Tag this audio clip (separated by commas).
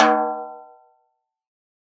Percussion, Music, Snare drum, Drum, Musical instrument